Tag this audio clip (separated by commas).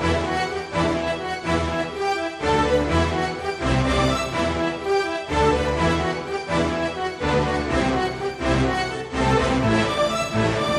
Music, Video game music